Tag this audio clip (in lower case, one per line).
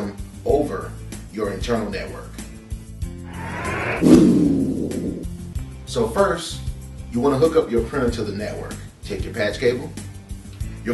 speech
music